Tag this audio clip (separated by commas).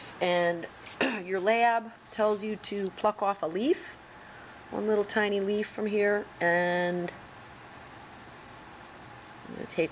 Speech